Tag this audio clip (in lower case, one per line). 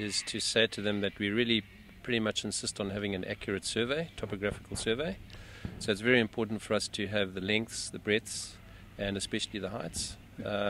speech